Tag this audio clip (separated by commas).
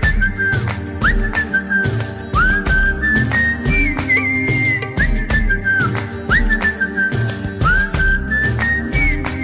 Music